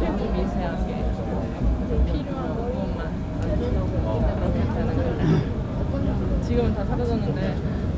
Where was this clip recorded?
on a subway train